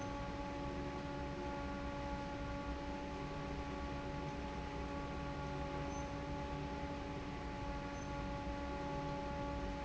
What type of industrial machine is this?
fan